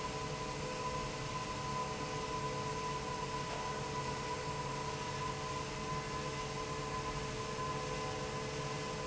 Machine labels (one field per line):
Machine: fan